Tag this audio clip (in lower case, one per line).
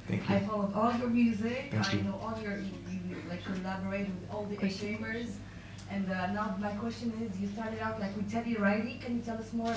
speech